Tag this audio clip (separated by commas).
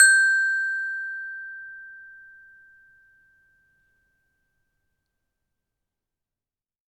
Musical instrument, Percussion, Mallet percussion, Music, xylophone